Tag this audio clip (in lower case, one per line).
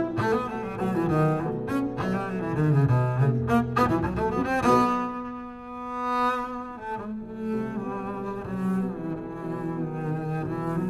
bowed string instrument
playing cello
cello
double bass